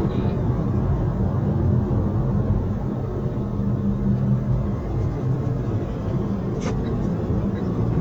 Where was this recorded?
in a car